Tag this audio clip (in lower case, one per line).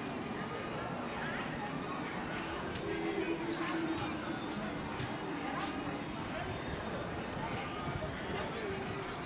footsteps
speech